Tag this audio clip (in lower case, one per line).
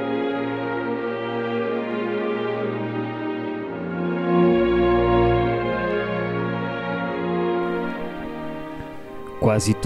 music
speech